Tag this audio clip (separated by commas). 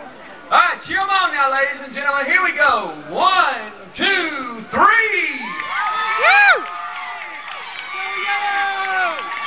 Vehicle, Rowboat, Speech